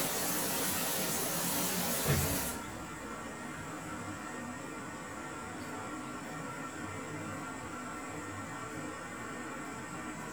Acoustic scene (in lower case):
restroom